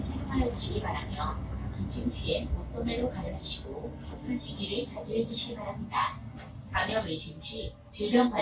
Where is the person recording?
on a bus